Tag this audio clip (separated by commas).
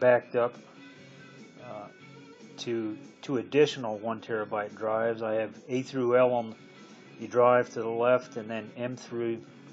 Speech, Music